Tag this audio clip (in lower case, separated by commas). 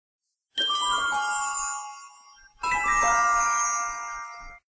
music